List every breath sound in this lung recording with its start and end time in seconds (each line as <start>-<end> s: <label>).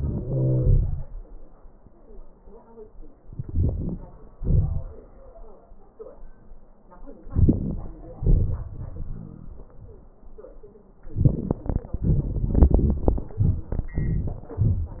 0.00-1.08 s: wheeze
3.40-4.00 s: inhalation
4.35-4.86 s: exhalation
7.30-7.77 s: inhalation
8.18-8.60 s: exhalation